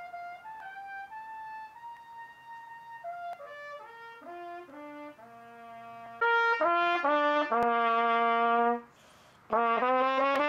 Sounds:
Music

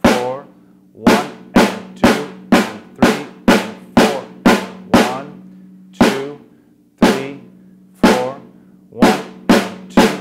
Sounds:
playing snare drum

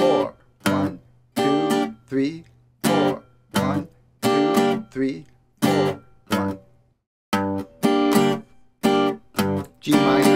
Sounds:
Music, Speech

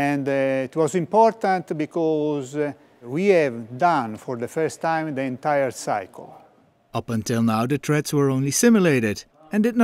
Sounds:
Speech

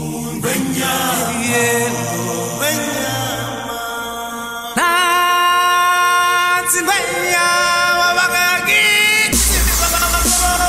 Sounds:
Music

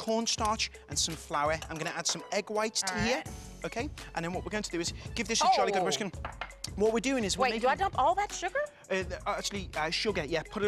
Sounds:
Speech, Music

